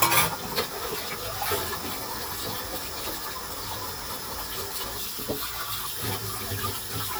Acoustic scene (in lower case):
kitchen